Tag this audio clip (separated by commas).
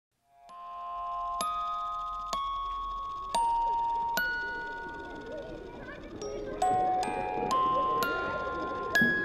Speech, Music